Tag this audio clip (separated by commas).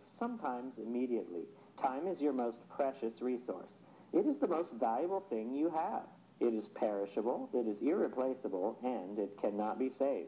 Speech